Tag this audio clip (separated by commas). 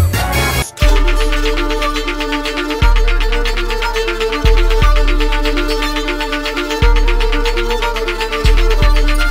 Music